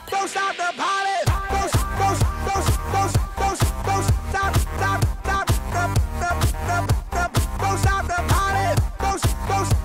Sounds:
music

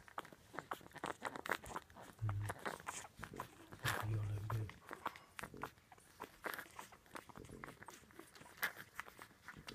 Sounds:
speech, domestic animals, dog, animal

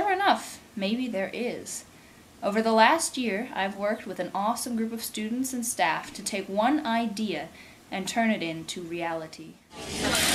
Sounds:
speech

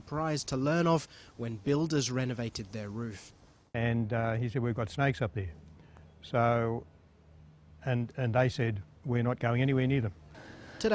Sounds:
speech

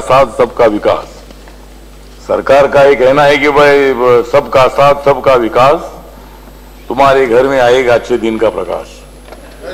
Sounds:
man speaking, speech, monologue

